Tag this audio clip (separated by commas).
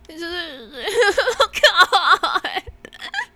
Human voice, Crying